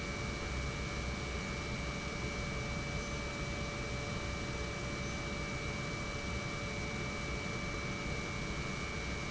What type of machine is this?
pump